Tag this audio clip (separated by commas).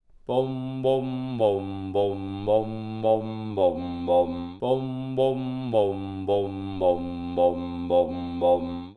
Human voice, Singing